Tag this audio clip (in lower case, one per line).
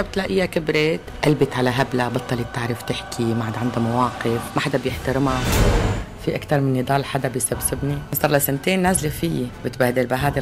radio
music
speech